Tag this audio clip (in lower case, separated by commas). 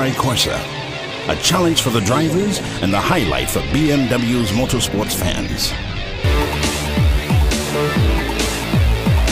speech, music